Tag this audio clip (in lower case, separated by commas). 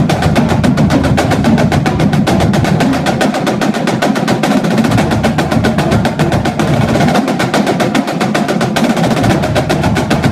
drum roll, snare drum, percussion, drum, playing snare drum, bass drum